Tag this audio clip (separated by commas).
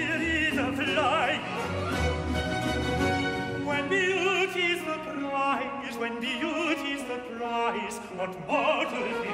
Music